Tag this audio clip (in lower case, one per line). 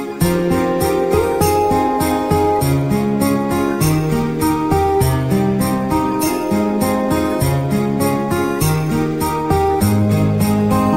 music